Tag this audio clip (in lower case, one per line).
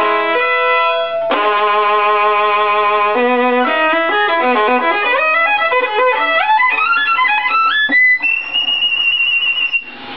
violin
music
musical instrument